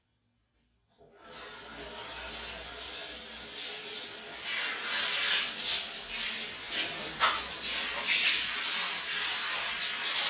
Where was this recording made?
in a restroom